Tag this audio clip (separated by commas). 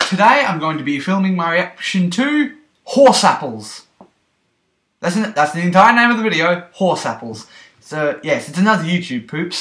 Speech